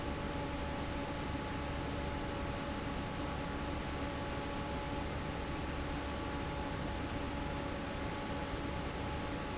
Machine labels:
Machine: fan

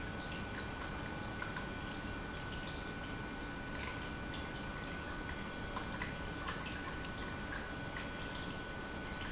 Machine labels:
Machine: pump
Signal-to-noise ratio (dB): 0 dB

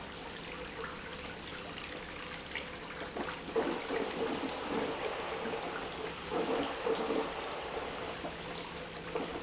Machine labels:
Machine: pump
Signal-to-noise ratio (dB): 6 dB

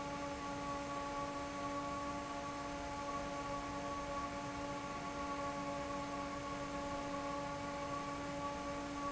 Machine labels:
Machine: fan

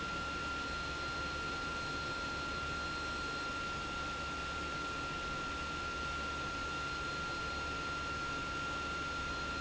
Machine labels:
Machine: pump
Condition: abnormal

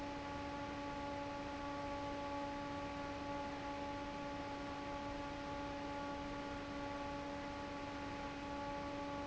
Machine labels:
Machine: fan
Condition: normal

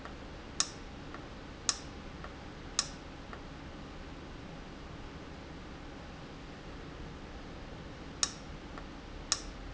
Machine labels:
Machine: valve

